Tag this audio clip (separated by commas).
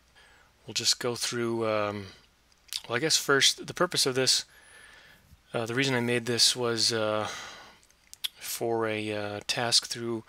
Speech